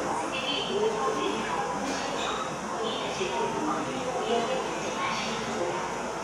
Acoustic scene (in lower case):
subway station